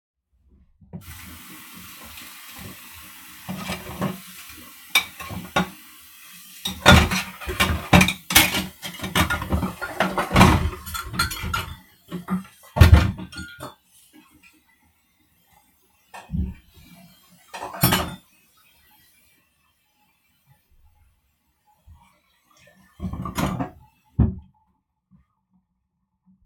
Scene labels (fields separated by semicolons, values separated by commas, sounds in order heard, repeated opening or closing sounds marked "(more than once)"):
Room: kitchen; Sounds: running water, cutlery and dishes